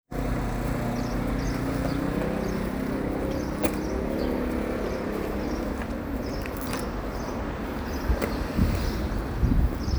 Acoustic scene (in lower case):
residential area